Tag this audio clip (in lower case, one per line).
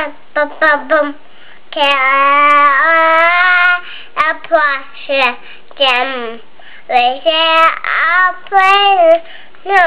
speech